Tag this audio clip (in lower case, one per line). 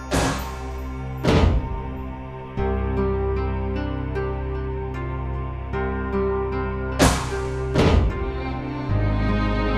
music